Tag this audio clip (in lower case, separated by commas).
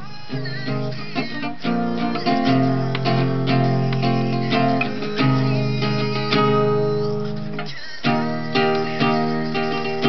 strum, musical instrument, guitar, plucked string instrument, acoustic guitar, music